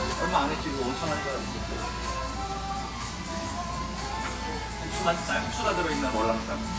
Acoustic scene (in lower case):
restaurant